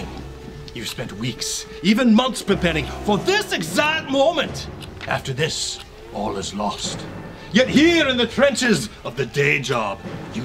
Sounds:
music, tick, speech

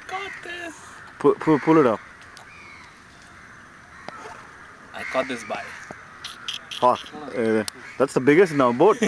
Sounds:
speech

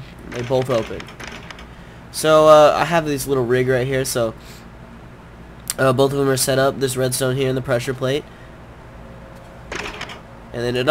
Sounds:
door, speech

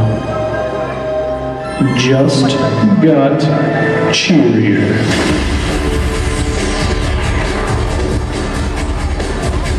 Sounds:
speech, music

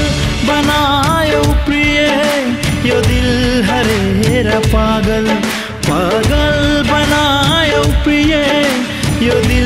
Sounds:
singing, music of bollywood

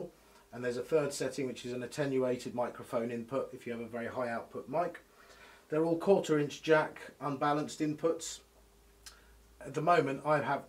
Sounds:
speech

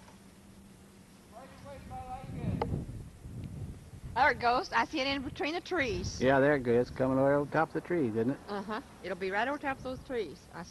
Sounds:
speech

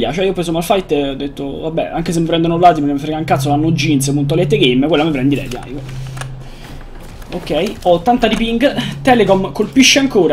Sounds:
speech

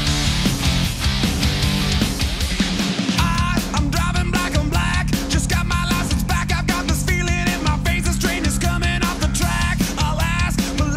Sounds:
musical instrument, plucked string instrument, electric guitar, guitar, strum, music

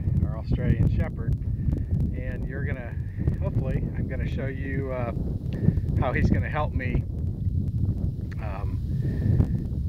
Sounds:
speech

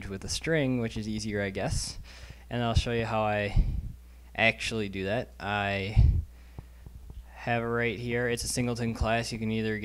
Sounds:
speech

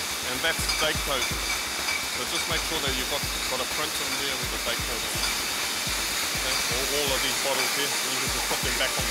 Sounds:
music, speech, inside a large room or hall

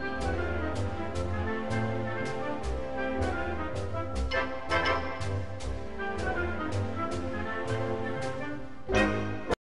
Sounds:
music

